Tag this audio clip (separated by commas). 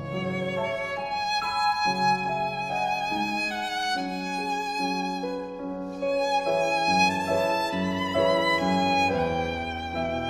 Musical instrument, Violin, Music